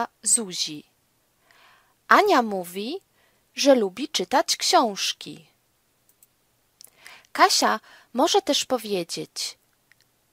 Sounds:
Speech, woman speaking, Conversation

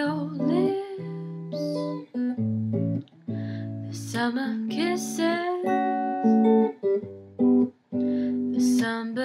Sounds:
Music, Guitar, Musical instrument, Acoustic guitar

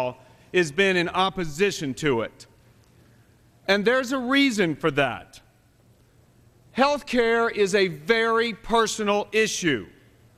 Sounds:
Speech

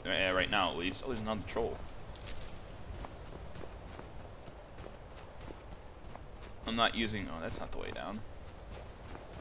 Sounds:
Speech

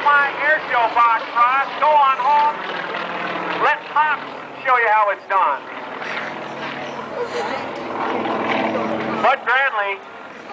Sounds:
Speech

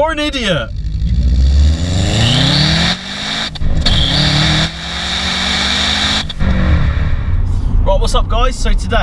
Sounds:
Car, revving, Vehicle

